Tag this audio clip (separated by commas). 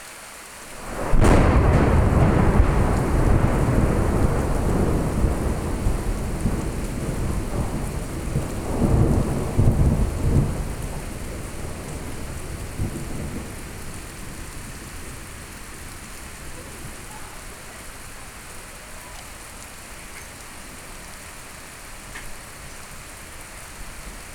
Thunderstorm, Rain, Water, Thunder